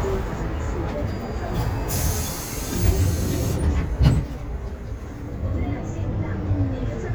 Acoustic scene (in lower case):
bus